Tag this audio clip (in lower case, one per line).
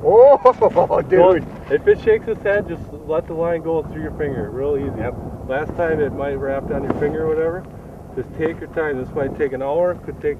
speech